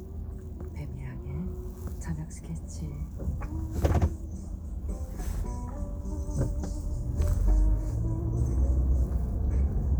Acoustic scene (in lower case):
car